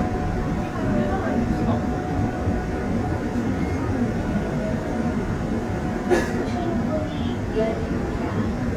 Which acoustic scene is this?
subway train